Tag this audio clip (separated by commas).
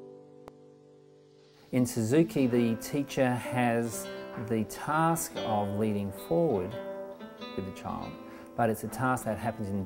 Plucked string instrument, Speech, Acoustic guitar, Musical instrument, Guitar, Music, Strum